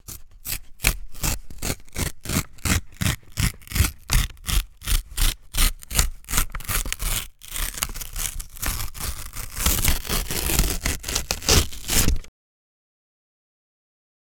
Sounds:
Tearing

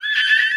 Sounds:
Screech, Screaming, Human voice

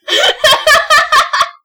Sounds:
Laughter, Human voice

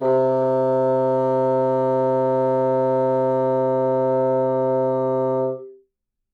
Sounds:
Musical instrument, Wind instrument, Music

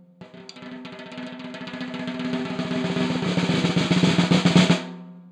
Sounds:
Snare drum, Percussion, Musical instrument, Drum, Music

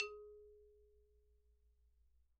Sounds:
Musical instrument, Percussion, Mallet percussion, Marimba, Music

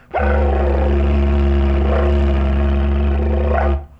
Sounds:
Musical instrument, Music

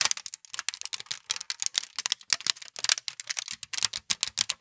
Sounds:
Crushing

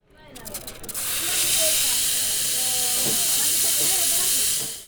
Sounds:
Hiss

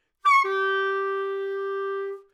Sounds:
Music, Musical instrument, woodwind instrument

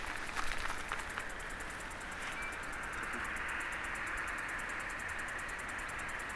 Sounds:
Wild animals, Insect, Animal, Cricket

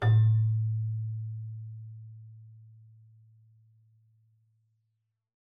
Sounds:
Keyboard (musical), Musical instrument, Music

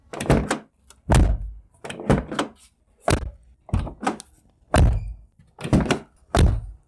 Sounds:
Slam, Car, Door, Domestic sounds, Motor vehicle (road), Vehicle

